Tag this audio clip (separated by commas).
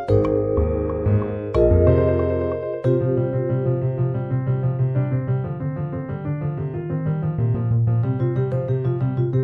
Music